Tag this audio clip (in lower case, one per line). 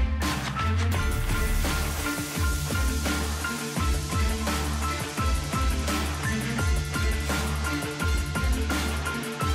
music